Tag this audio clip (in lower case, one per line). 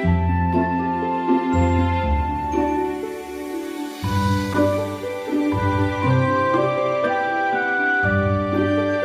music